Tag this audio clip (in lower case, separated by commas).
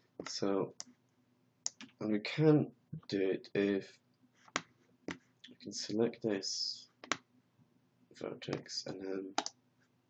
speech